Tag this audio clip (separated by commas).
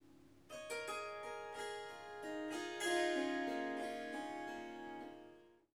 Musical instrument, Harp, Music